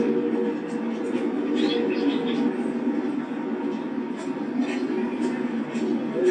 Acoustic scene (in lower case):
park